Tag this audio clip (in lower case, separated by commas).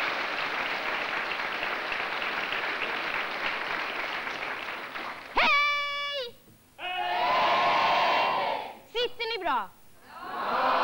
speech